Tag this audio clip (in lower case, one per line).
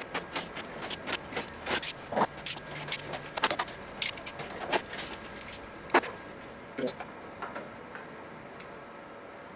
speech
printer